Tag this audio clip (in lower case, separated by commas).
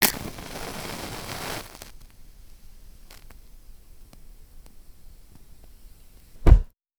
fire